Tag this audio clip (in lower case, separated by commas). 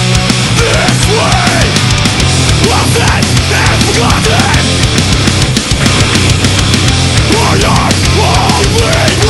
music